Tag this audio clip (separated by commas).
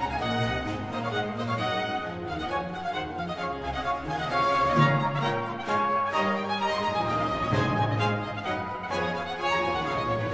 Music